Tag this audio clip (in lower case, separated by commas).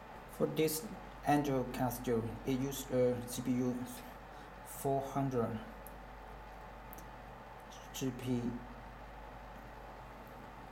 speech